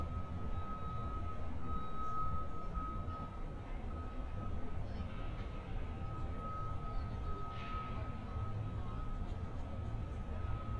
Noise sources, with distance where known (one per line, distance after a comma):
reverse beeper, far